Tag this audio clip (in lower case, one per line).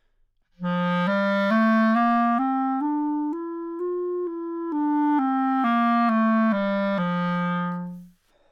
musical instrument
wind instrument
music